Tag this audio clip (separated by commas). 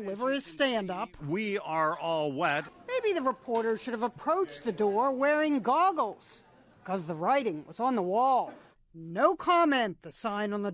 Speech